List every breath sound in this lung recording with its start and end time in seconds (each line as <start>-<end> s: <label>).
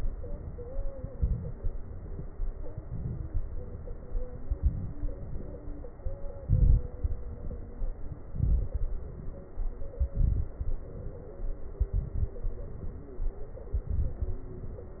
0.95-1.75 s: inhalation
0.95-1.75 s: crackles
2.68-3.48 s: inhalation
2.68-3.48 s: crackles
4.50-5.17 s: inhalation
4.50-5.17 s: crackles
6.42-6.90 s: inhalation
6.42-6.90 s: crackles
8.34-8.82 s: inhalation
8.34-8.82 s: crackles
10.13-10.60 s: inhalation
10.13-10.60 s: crackles
11.86-12.33 s: inhalation
11.86-12.33 s: crackles
13.83-14.31 s: inhalation
13.83-14.31 s: crackles